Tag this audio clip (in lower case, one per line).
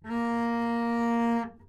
bowed string instrument
music
musical instrument